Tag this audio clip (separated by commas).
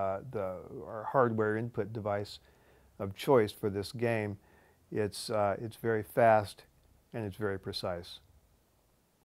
Speech